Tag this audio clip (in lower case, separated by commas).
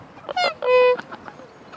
animal, fowl, livestock